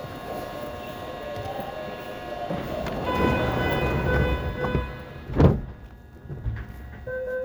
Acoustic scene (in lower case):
subway station